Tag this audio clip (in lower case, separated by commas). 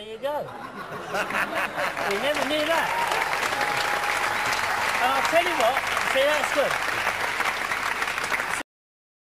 speech